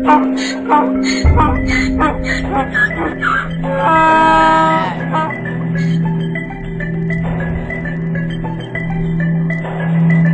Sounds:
donkey

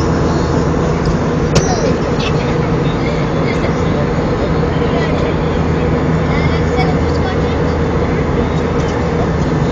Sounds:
Speech

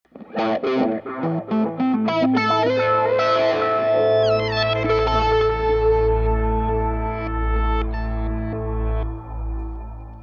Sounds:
Musical instrument, Effects unit, Guitar, Music, Plucked string instrument

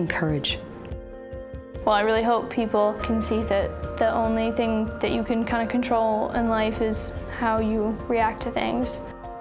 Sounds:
Speech, Music

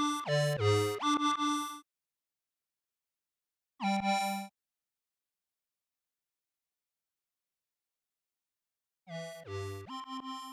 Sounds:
Sampler

